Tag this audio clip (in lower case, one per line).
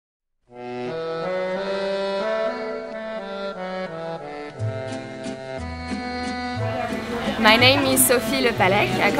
wind instrument